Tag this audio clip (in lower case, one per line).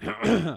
cough
respiratory sounds